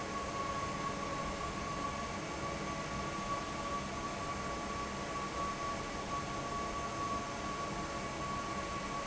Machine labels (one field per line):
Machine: fan